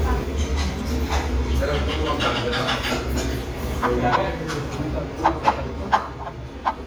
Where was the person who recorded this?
in a restaurant